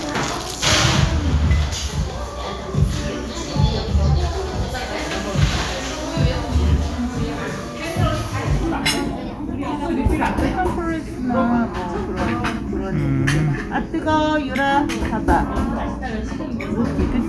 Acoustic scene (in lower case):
cafe